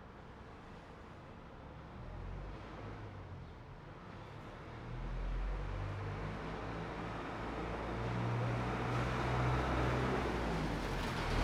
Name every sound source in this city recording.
truck, truck engine accelerating